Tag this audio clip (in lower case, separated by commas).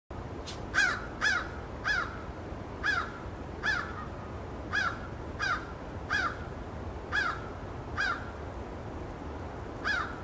crow cawing